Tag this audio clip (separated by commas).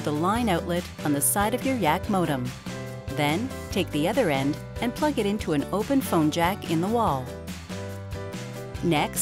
Speech, Music